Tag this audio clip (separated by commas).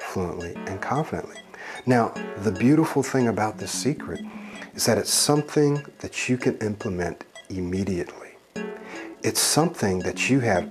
man speaking, monologue, Music, Speech